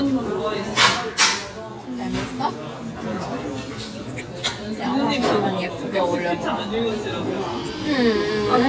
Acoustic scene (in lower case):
restaurant